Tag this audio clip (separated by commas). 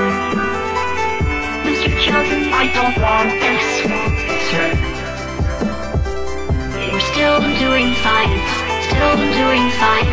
Music, Jazz